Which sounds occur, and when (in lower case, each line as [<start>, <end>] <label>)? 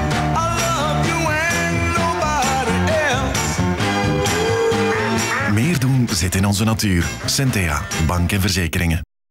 [0.00, 9.03] music
[0.27, 3.32] male singing
[4.87, 5.11] quack
[5.29, 5.51] quack
[5.30, 5.79] male speech
[6.03, 9.03] male speech